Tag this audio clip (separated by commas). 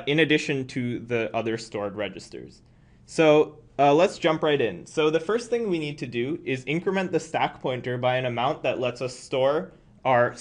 Speech